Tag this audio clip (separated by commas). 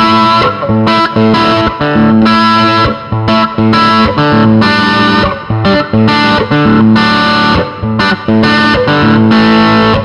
Electric guitar, Music